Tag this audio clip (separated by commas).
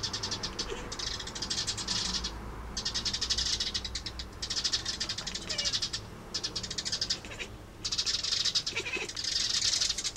Meow, Animal, Cat, pets